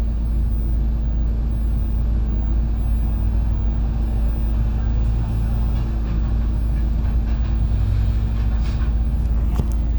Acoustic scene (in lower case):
bus